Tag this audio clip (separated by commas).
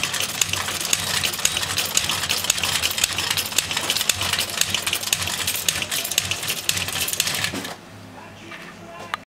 Speech